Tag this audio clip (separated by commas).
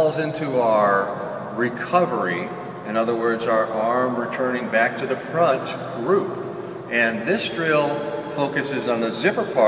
Speech